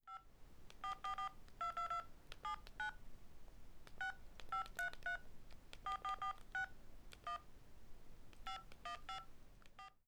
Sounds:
Telephone, Alarm

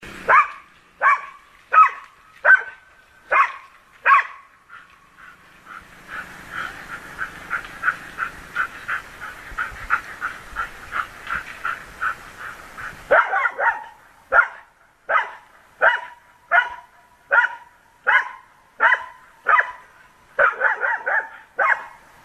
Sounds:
Dog, Animal, pets

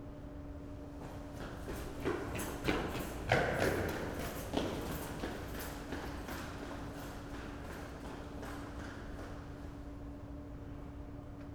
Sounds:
Run

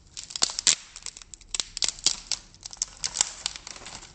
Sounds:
Wood

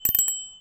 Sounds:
Alarm, Bicycle, Bell, Vehicle, Bicycle bell

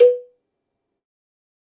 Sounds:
Cowbell, Bell

